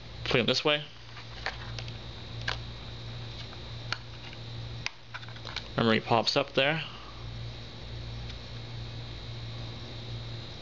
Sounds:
inside a small room, Speech

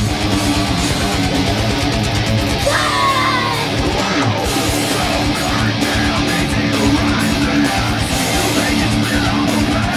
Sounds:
Musical instrument, Guitar, Plucked string instrument, Music, Strum, Electric guitar

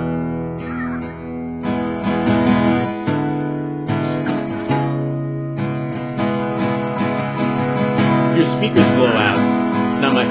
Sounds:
Musical instrument, Strum, Speech, Guitar, Music, Plucked string instrument

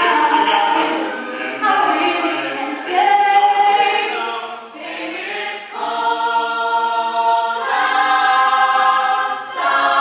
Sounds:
Singing, Choir

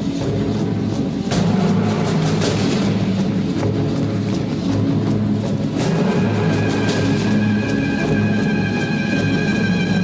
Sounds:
Music

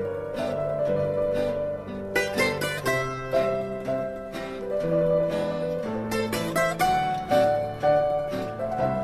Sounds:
Music

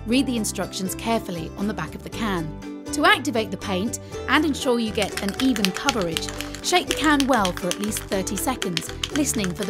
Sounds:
Music, Speech

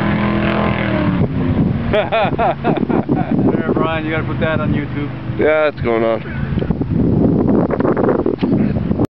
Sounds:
Speech, Vehicle, Motorboat, Water vehicle

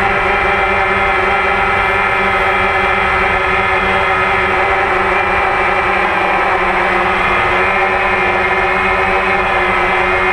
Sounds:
Vehicle

